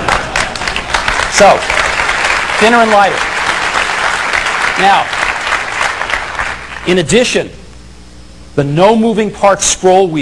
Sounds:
speech

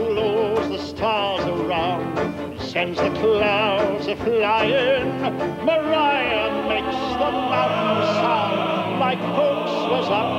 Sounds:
music

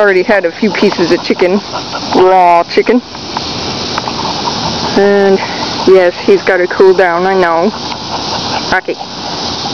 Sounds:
pets
speech
animal
dog

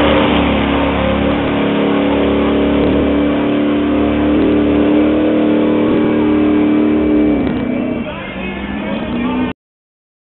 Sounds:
speech
vehicle

